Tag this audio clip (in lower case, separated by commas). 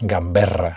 speech, human voice, male speech